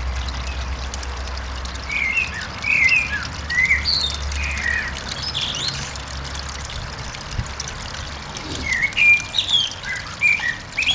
Birds chirping outdoors near running water